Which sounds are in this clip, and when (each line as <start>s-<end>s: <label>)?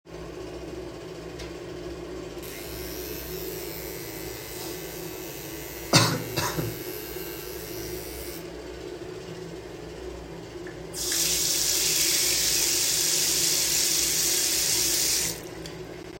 10.9s-16.0s: running water